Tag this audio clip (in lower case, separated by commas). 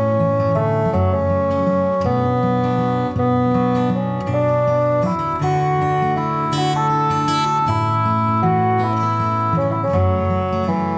music